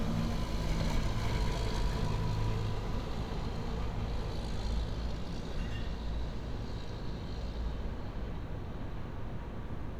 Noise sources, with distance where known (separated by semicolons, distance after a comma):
large-sounding engine